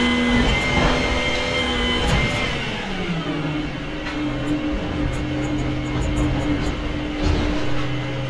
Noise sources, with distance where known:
large-sounding engine, near

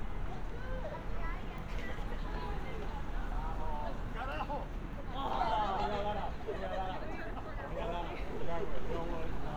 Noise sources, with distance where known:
person or small group talking, near

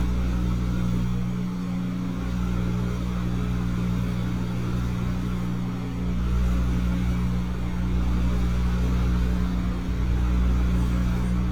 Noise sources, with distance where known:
engine of unclear size, near

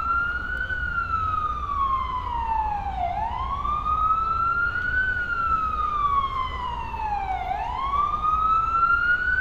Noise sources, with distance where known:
siren, near

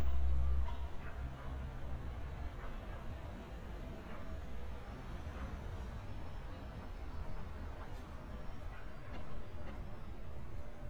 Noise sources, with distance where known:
dog barking or whining, far

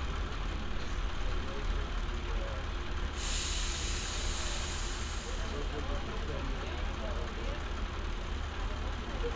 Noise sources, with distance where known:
unidentified human voice

